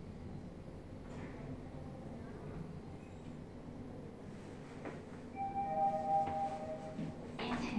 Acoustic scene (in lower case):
elevator